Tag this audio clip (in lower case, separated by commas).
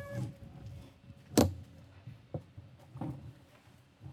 bicycle, vehicle